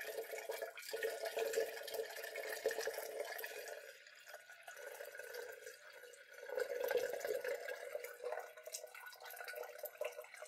Tap water from a faucet runs